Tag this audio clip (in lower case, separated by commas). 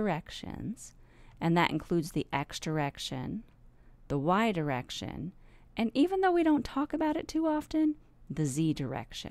speech